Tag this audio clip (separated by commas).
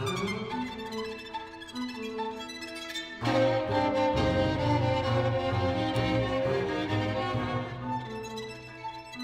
Music, Traditional music